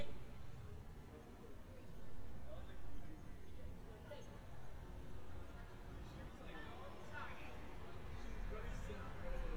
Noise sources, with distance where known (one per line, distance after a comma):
person or small group talking, far